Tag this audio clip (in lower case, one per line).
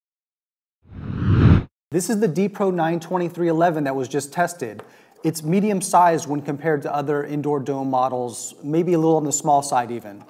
speech